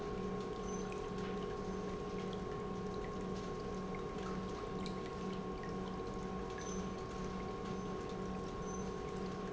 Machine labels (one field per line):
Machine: pump